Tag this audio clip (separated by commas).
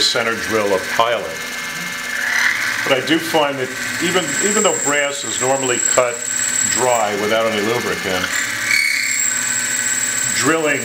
Speech